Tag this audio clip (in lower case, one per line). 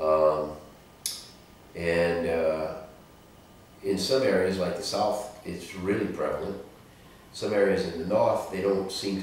speech